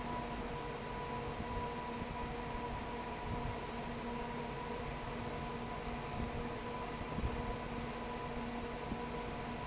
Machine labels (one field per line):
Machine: fan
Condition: abnormal